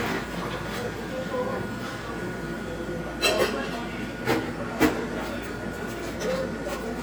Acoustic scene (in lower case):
cafe